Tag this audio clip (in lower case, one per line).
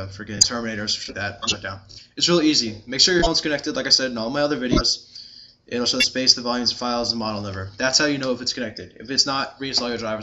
speech